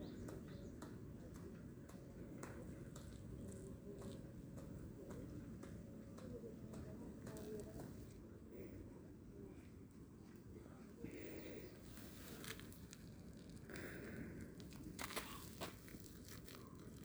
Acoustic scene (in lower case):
park